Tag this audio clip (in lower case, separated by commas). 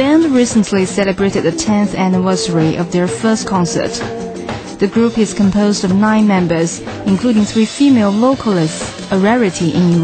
speech, music